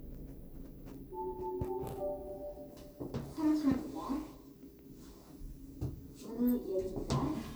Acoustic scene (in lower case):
elevator